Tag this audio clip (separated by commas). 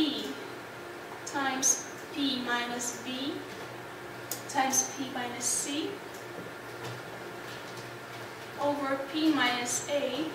Speech